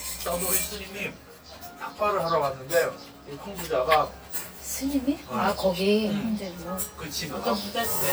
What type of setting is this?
restaurant